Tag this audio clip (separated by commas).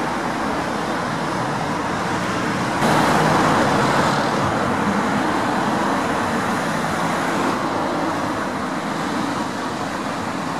Vehicle